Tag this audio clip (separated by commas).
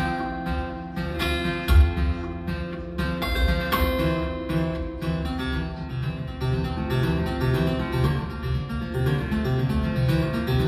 Music